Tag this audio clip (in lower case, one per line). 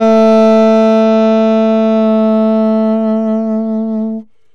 music
musical instrument
wind instrument